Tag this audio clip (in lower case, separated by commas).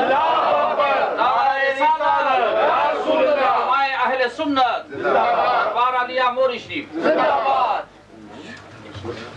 male speech, speech, conversation